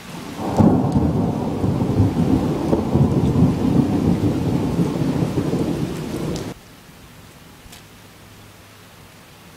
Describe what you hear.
Rain pours down as thunder booms